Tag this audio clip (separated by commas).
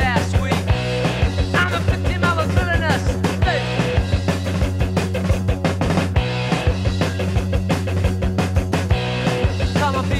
Music